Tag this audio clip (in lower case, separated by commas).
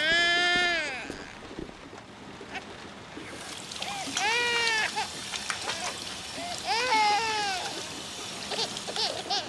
splash